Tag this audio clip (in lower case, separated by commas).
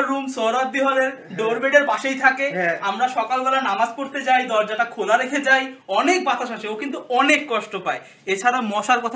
speech